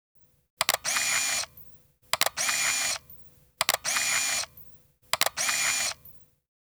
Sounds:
camera, mechanisms

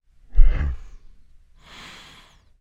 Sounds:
respiratory sounds, breathing

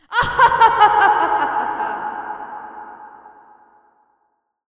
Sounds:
human voice, laughter

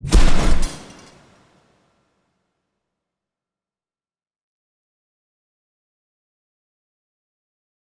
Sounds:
explosion

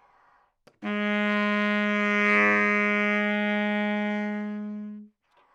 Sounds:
music, wind instrument, musical instrument

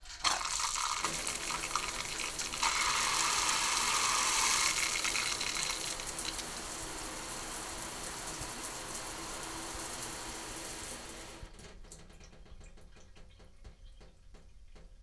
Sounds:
home sounds, bathtub (filling or washing)

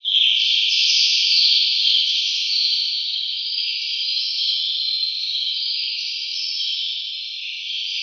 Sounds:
bird vocalization, animal, bird, wild animals

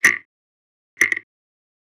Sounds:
mechanisms, clock

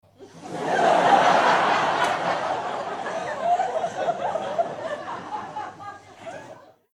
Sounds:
crowd, human group actions, laughter, human voice

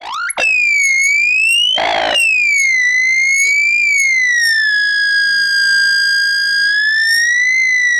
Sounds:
animal

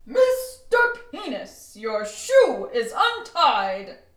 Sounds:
female speech, human voice, shout, speech, yell

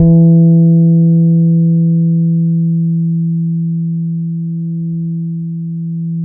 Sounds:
plucked string instrument, music, bass guitar, musical instrument, guitar

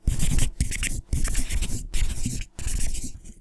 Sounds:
writing, home sounds

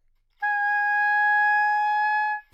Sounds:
music, musical instrument, woodwind instrument

